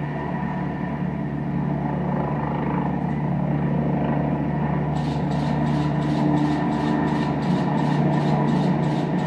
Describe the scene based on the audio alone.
Helicopter is flying